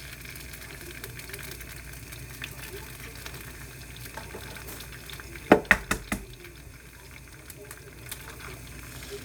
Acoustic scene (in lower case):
kitchen